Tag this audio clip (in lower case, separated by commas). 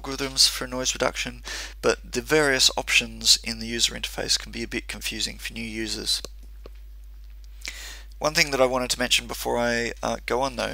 speech